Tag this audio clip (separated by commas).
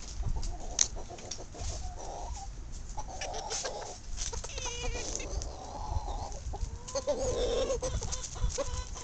livestock